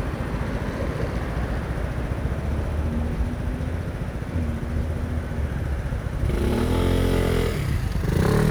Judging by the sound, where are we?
on a street